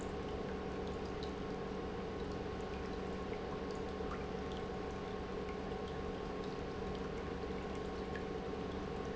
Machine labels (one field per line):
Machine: pump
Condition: normal